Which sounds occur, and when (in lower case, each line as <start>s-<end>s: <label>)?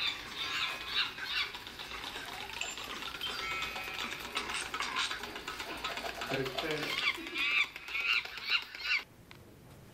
0.0s-9.9s: background noise
0.0s-9.1s: video game sound
6.3s-6.8s: male speech
8.8s-9.0s: animal
9.3s-9.4s: generic impact sounds